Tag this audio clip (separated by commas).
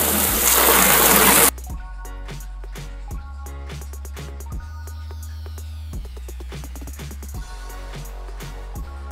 Music